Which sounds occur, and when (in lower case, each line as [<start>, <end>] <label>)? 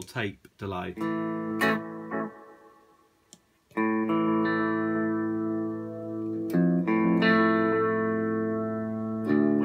[0.00, 0.28] man speaking
[0.00, 9.64] mechanisms
[0.37, 0.48] human sounds
[0.51, 0.92] man speaking
[0.90, 3.10] electronic tuner
[3.24, 3.35] tick
[3.68, 9.64] electronic tuner
[6.44, 6.52] generic impact sounds